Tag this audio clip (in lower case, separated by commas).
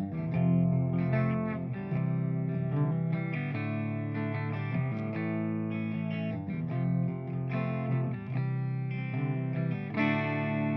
music